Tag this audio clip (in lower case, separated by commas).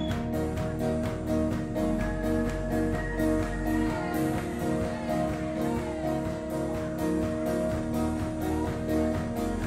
house music, music